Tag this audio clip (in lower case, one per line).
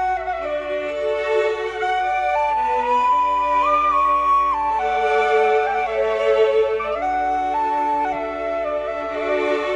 woodwind instrument
bowed string instrument
musical instrument
music
flute
fiddle